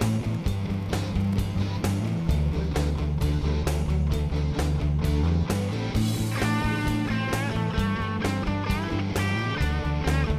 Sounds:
Music

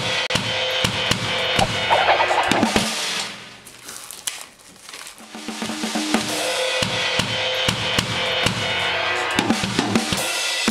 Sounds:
Music

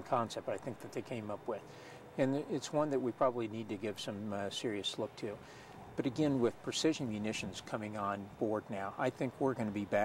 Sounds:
Speech

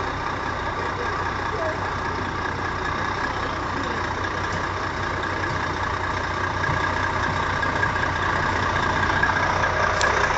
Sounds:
Vehicle, Speech

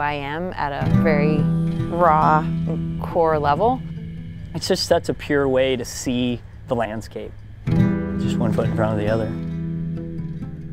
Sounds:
Speech, Music

